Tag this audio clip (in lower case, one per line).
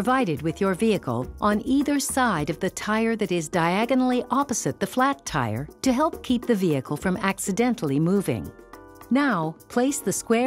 music
speech